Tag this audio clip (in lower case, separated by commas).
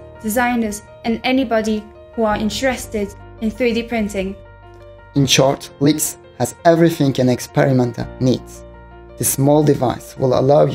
music, speech